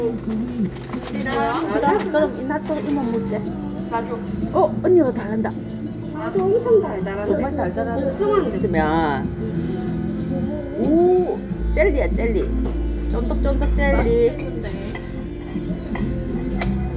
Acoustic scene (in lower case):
restaurant